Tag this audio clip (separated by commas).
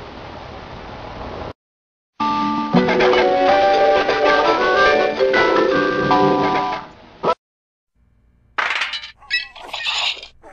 Music